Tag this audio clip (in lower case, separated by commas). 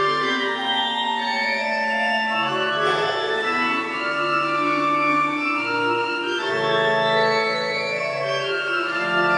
organ, piano, music